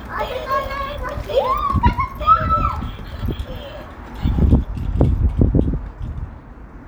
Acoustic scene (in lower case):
residential area